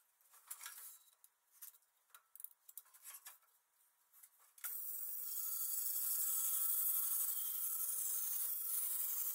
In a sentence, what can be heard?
Power tools are being used